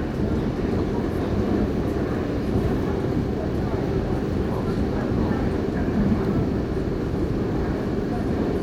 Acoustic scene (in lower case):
subway train